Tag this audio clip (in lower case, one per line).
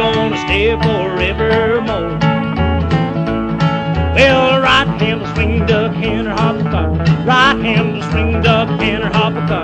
music